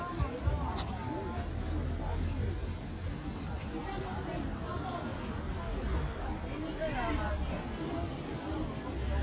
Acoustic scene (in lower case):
residential area